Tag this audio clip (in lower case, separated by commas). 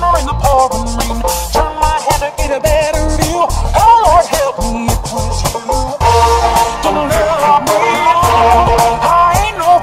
music